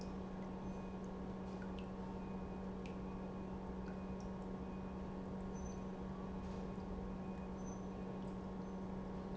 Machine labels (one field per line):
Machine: pump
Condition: normal